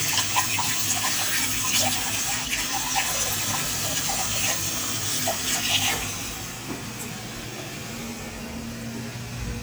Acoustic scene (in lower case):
restroom